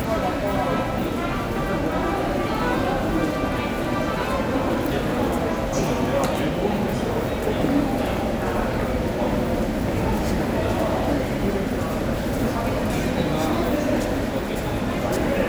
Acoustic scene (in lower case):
subway station